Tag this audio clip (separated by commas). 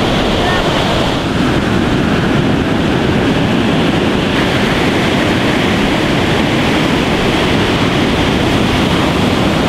Speech, surf